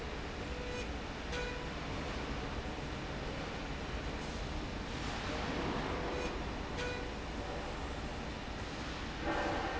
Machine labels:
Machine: slide rail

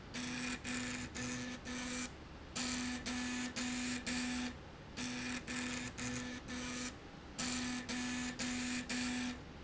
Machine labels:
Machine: slide rail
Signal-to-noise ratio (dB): 6 dB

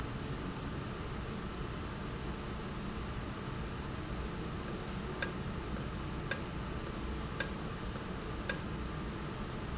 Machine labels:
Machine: valve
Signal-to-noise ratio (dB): -6 dB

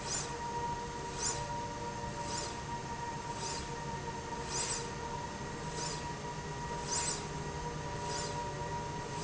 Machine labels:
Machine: slide rail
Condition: normal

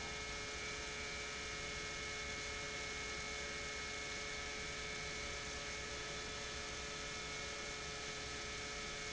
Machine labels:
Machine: pump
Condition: normal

